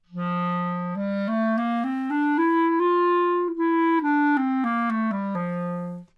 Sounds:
musical instrument
woodwind instrument
music

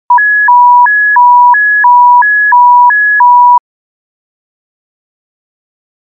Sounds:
alarm

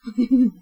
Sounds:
laughter
human voice
giggle

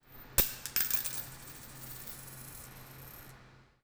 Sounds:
coin (dropping)
home sounds

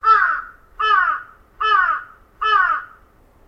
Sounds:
wild animals
bird
bird call
crow
animal

